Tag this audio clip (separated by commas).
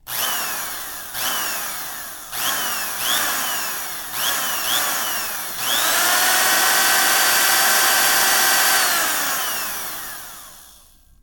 Drill, Power tool, Tools